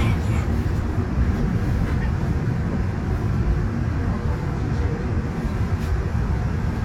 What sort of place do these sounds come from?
subway train